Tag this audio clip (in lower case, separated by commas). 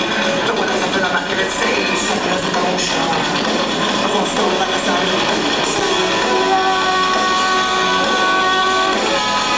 music